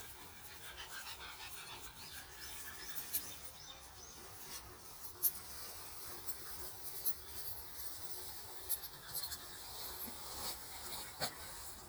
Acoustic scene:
park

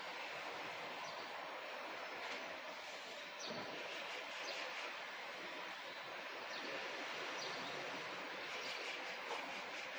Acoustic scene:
park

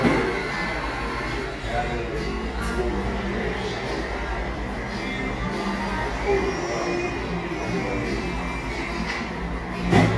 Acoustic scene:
cafe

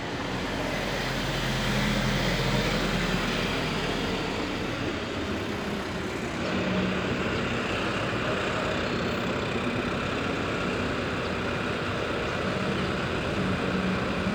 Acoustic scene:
street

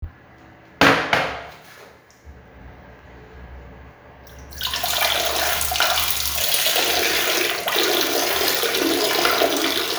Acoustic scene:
restroom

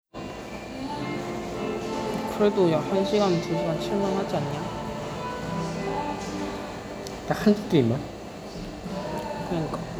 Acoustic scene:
cafe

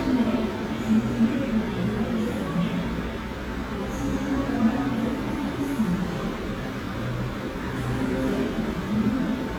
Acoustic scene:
cafe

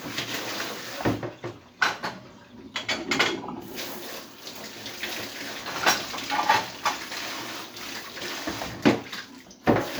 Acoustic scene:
kitchen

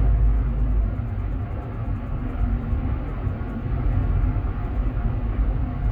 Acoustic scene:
car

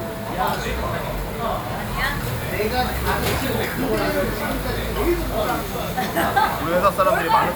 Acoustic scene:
restaurant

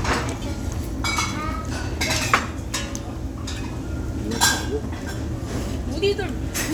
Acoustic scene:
crowded indoor space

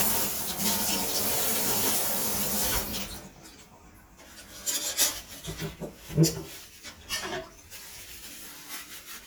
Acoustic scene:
kitchen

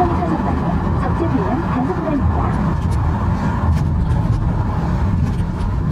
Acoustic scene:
car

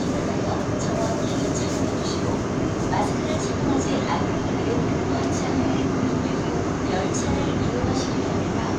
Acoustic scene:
subway train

